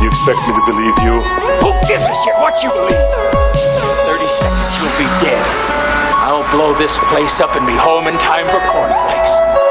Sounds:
dubstep, music

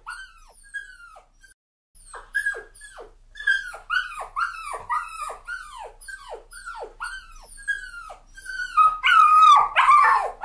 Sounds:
dog whimpering

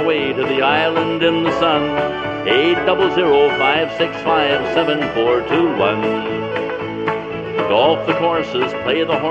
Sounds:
radio, music

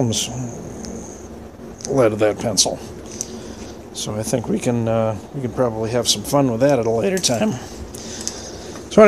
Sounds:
speech

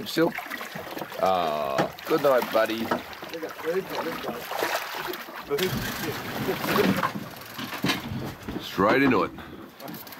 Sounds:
speech

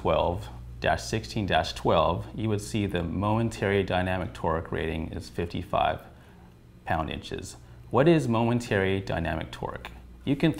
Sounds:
speech

